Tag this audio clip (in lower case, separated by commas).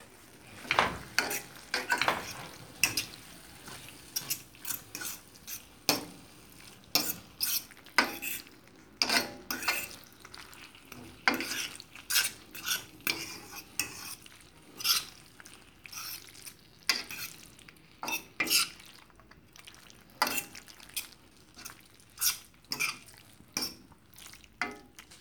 frying (food), home sounds